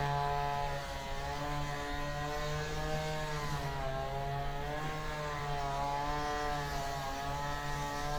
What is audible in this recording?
small-sounding engine